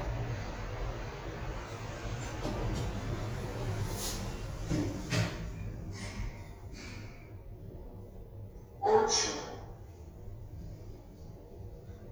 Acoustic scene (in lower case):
elevator